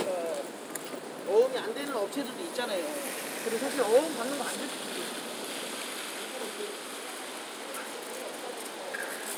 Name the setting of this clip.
residential area